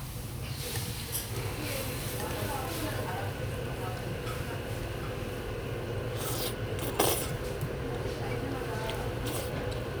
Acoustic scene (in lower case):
restaurant